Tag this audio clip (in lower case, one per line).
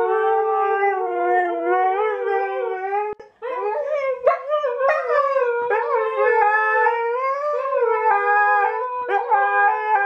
dog howling